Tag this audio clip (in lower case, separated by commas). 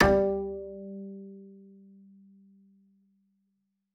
music, musical instrument, bowed string instrument